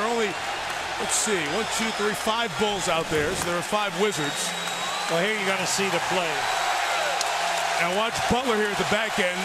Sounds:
Speech

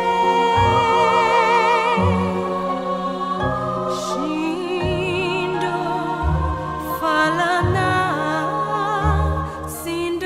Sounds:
Tender music, Music

